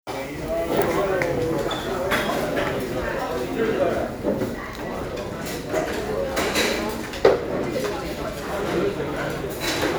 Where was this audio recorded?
in a crowded indoor space